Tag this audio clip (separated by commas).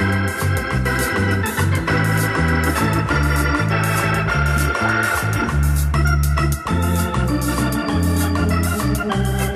Electronic organ, Organ